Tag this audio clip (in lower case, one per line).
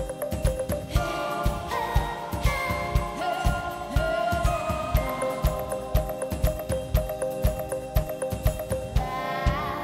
music